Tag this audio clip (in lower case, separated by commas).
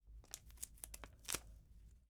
packing tape, home sounds